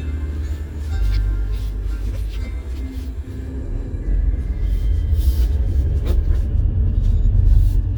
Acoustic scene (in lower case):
car